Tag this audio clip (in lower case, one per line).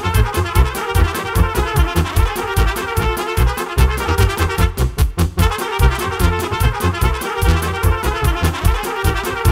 trumpet
playing trumpet
brass instrument